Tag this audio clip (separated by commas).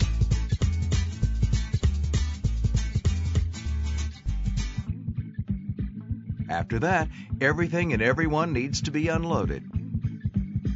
Music, Speech